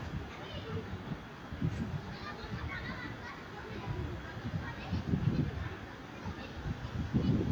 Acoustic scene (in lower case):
residential area